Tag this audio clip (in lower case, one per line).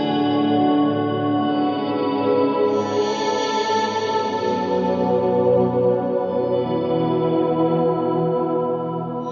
musical instrument
music